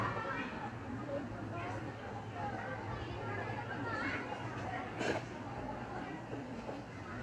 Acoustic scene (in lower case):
park